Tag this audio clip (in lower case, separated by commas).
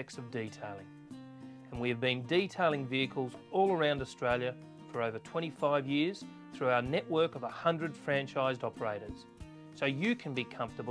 music, speech